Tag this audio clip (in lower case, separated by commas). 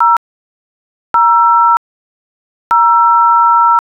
alarm, telephone